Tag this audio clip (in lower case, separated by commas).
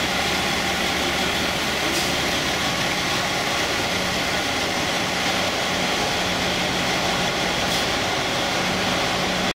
truck, vehicle